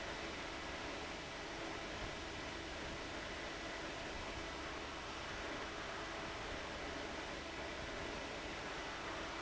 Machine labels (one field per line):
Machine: fan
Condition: abnormal